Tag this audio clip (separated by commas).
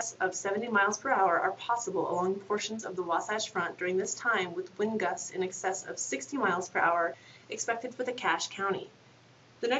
Speech